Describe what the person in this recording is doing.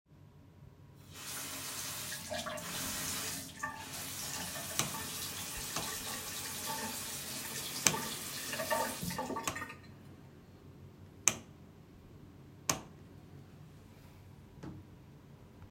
I turned on the sink so the water was running and I switched the bathroom light on and off.